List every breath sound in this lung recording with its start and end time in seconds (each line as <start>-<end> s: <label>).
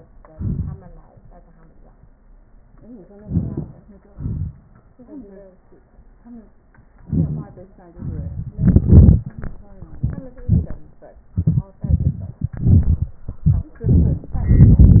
3.21-3.70 s: inhalation
4.13-4.55 s: exhalation
7.09-7.51 s: inhalation
7.99-8.54 s: exhalation